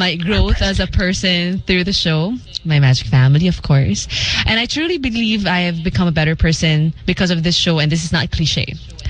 A woman speaking